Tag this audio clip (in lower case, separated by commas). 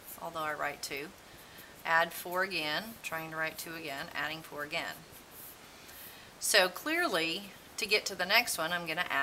writing, speech